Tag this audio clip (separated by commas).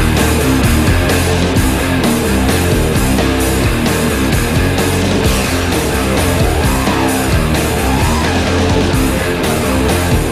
Punk rock